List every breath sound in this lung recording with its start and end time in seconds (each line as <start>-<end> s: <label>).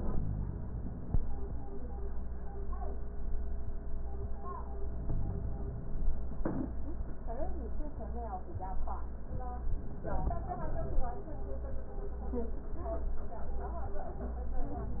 4.85-6.18 s: inhalation
9.93-11.26 s: inhalation